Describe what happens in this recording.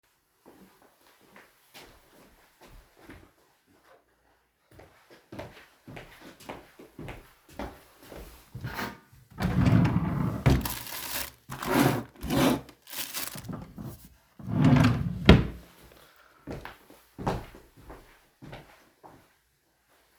I walked up to the drawer, opened it, moved around the contents, and then I’ve closed it and walked away.